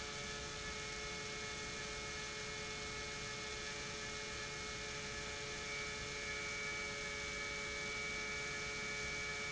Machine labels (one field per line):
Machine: pump